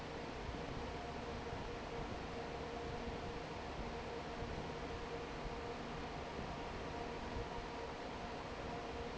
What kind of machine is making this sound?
fan